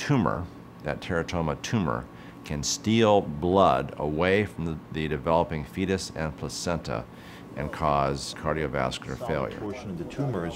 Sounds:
Speech

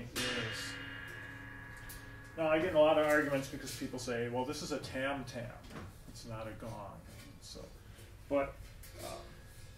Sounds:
Speech

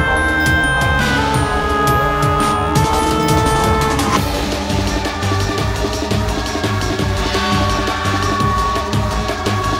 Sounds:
Music, Scary music

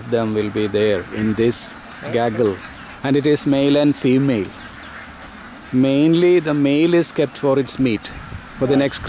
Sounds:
Duck, Animal, Quack, Speech

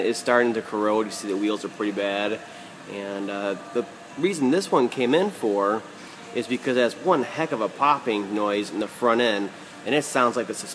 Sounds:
Speech

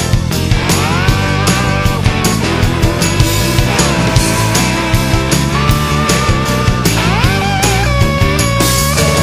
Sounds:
Music

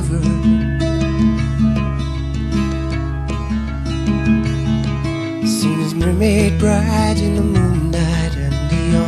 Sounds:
Music

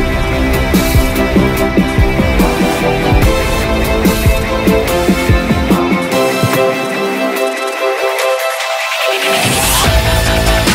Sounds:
Music

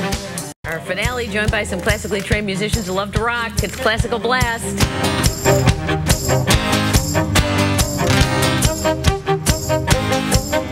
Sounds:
Music, Speech

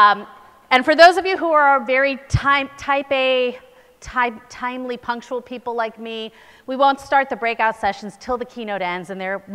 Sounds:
Speech

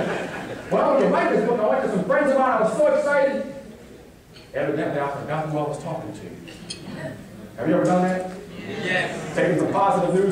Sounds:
Male speech, Speech, Conversation

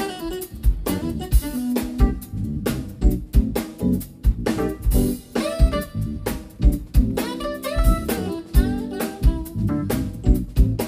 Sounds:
Jazz, Music

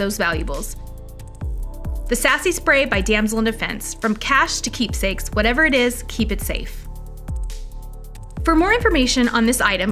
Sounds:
Speech, Music

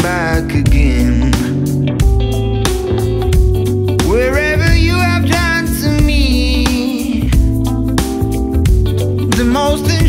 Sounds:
Music

